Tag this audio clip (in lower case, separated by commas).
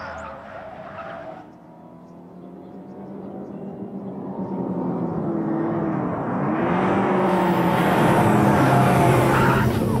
vehicle, car